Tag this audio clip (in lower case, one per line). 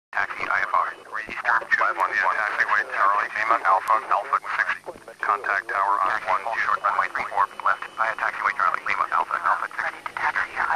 speech
radio